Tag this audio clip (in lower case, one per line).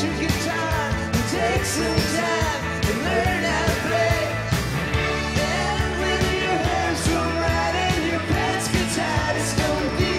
music